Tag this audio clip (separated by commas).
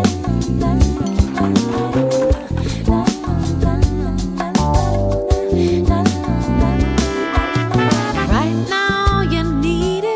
Music